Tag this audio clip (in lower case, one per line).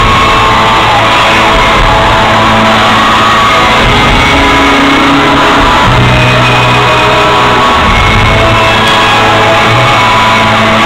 music